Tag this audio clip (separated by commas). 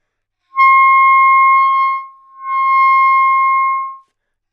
Musical instrument, woodwind instrument, Music